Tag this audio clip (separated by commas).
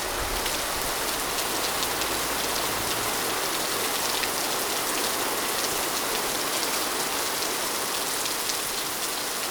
Rain, Water